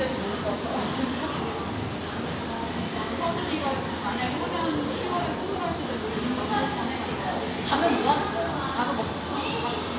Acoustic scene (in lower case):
crowded indoor space